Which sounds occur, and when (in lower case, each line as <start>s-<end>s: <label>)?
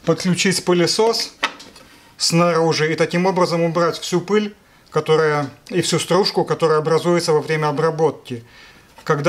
0.0s-1.2s: man speaking
0.0s-9.2s: background noise
1.2s-1.2s: generic impact sounds
1.4s-1.5s: generic impact sounds
1.5s-1.6s: tick
1.7s-1.8s: tick
1.8s-2.1s: surface contact
2.2s-4.5s: man speaking
4.6s-4.8s: breathing
4.9s-5.0s: tick
5.4s-5.4s: tick
5.6s-5.8s: tick
5.7s-8.4s: man speaking
8.4s-9.0s: breathing
8.9s-9.0s: surface contact
9.0s-9.1s: generic impact sounds
9.2s-9.2s: generic impact sounds